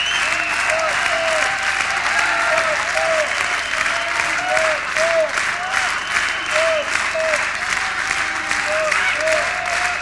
People are cheering